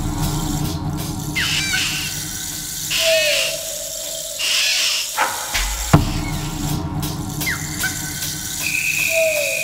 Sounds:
Drum, Music, Percussion, Drum kit, Musical instrument

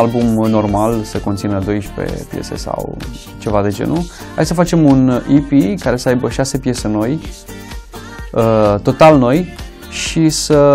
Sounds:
Music, Speech

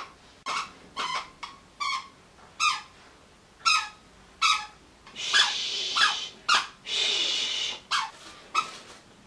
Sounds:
Speech, inside a small room

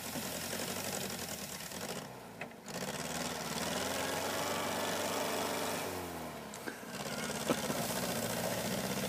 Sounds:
Vehicle

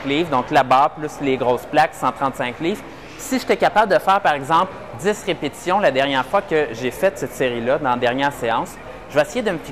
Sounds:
Speech

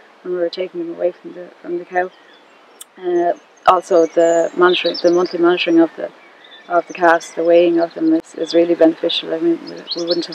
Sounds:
Animal, Chirp, Speech, outside, rural or natural

